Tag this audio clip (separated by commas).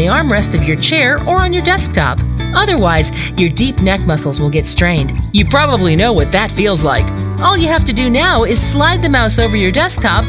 Music, Speech